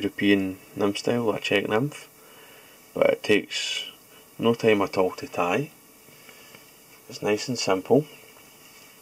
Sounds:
Speech

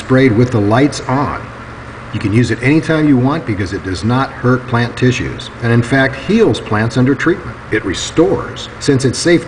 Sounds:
Speech

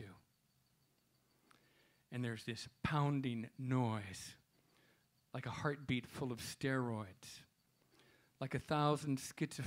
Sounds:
Speech

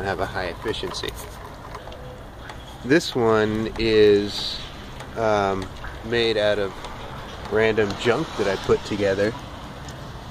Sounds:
Speech

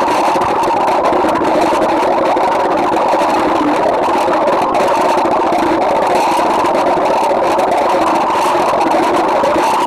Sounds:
underwater bubbling

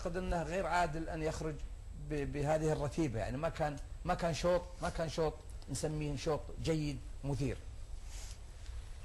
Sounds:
Speech

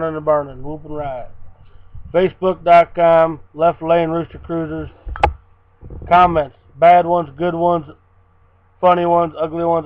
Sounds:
Speech

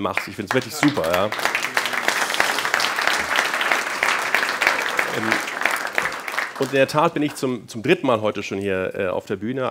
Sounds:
man speaking, Speech

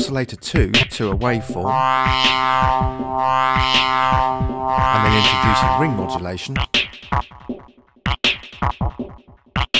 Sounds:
Music, Musical instrument, Synthesizer, Speech

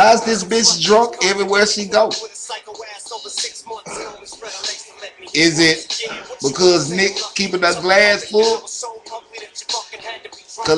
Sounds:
Speech, monologue, man speaking

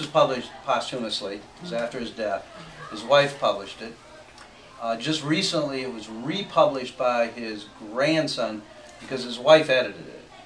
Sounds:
Speech

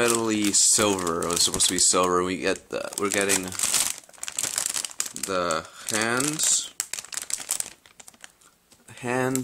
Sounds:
Speech, inside a small room

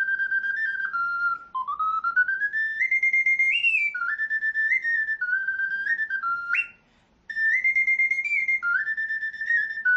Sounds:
Flute

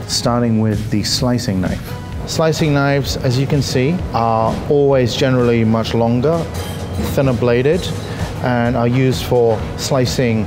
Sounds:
Music, Speech

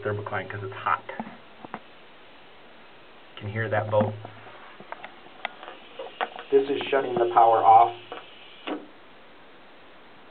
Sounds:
Speech

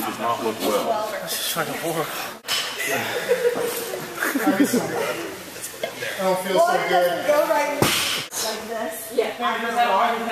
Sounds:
man speaking

